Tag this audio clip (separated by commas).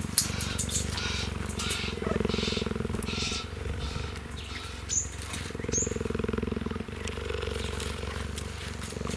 cheetah chirrup